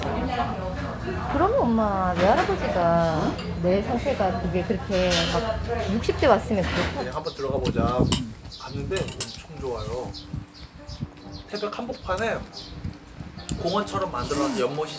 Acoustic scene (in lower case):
restaurant